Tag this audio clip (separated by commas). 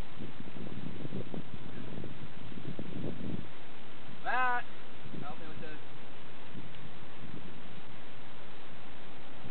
Speech